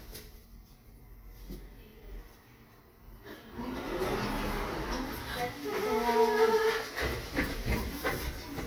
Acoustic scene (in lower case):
elevator